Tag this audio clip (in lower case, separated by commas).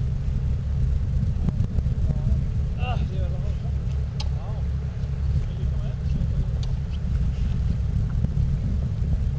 vehicle, speech